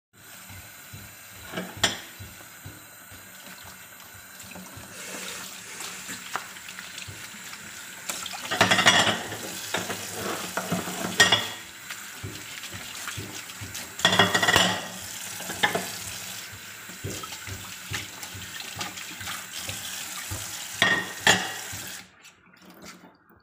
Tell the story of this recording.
I took the dishes from the table and brought them to the kithcen sink, where I them washed them with water and wiped them with towel. Afterwards I place them to the side of the kitchen sink.